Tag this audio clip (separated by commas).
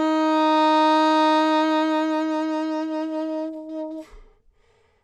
Wind instrument, Music, Musical instrument